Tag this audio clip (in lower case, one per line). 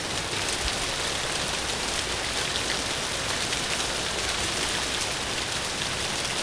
water
rain